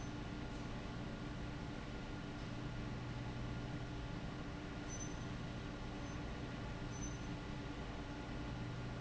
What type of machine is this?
fan